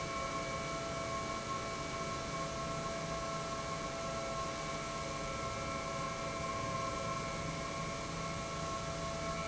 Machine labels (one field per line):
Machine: pump